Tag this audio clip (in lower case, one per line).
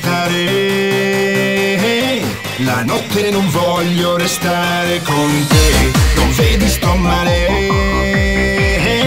music